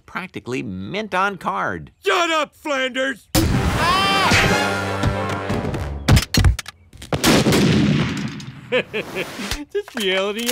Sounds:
gunfire

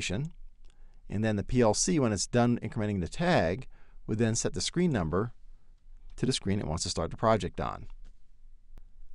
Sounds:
speech

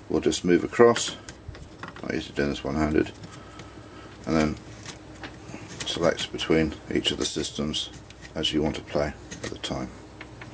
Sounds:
speech

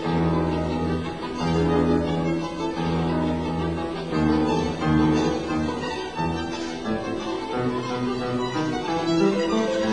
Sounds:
musical instrument
violin
music

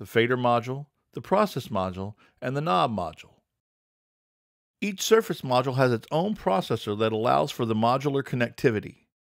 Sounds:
speech

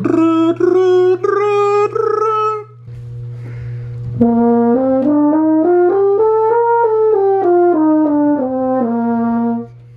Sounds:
playing french horn

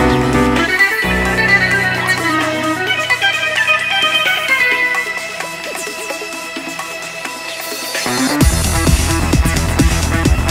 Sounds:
music

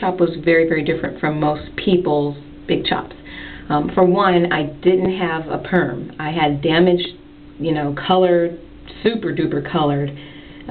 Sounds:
speech

